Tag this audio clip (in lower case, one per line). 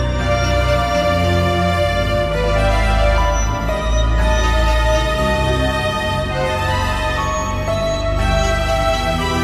progressive rock
music
ambient music
theme music
rock music